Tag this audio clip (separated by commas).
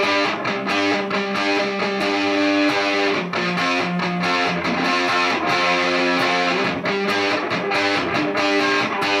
Music